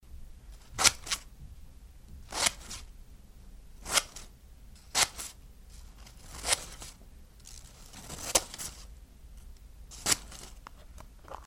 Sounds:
home sounds, scissors

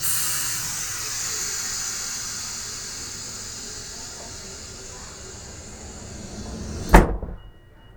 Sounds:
domestic sounds, vehicle, sliding door, rail transport, train, door

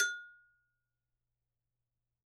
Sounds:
bell

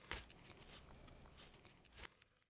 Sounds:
crackle, fire

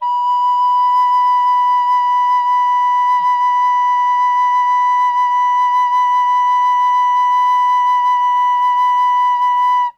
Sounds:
musical instrument, wind instrument, music

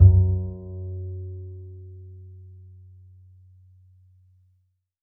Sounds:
bowed string instrument, music, musical instrument

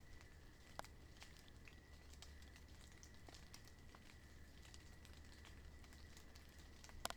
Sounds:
water, rain

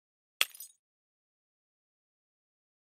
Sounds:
glass, shatter

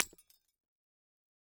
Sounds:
shatter, glass

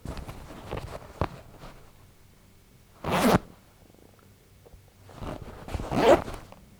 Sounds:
domestic sounds, zipper (clothing)

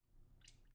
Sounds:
sink (filling or washing), domestic sounds

